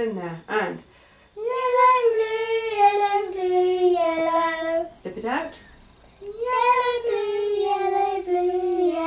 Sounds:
child singing, speech, singing, inside a small room

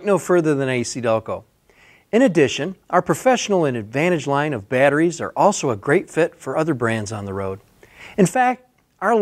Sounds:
speech

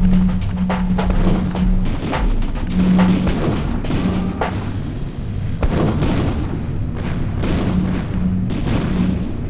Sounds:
music, boom

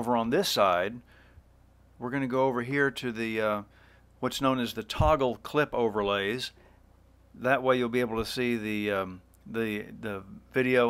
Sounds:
speech

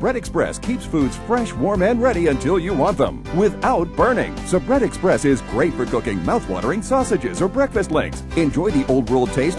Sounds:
music, speech

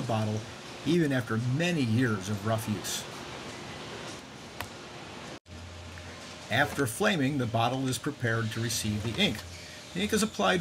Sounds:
speech

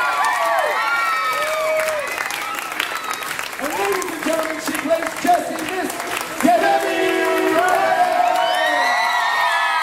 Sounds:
speech

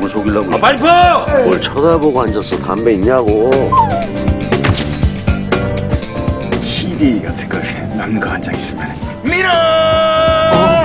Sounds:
music, speech

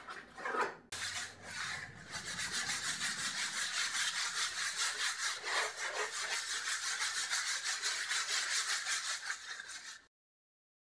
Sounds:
inside a small room

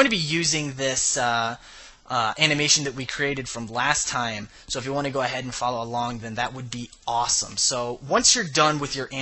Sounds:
speech

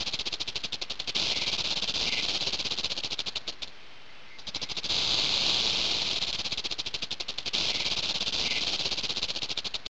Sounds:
snake

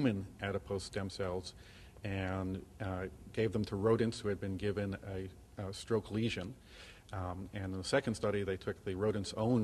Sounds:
speech

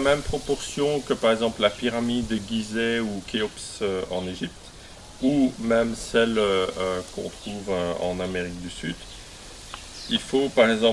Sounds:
speech

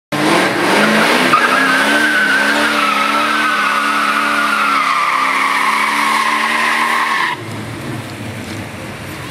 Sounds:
car, vehicle, race car

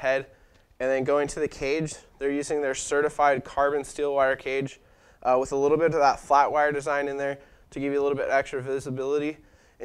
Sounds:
speech

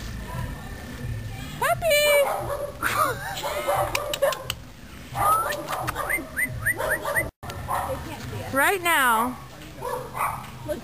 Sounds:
animal, bark, dog, speech

